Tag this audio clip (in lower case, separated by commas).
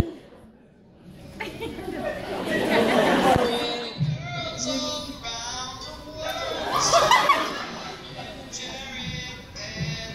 singing